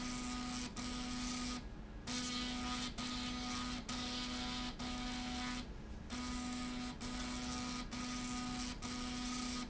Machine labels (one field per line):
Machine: slide rail